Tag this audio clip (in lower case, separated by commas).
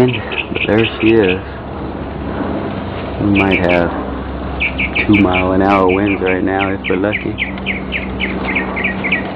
speech